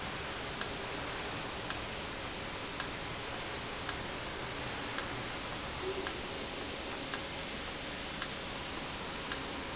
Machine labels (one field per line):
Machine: valve